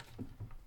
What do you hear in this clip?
wooden cupboard opening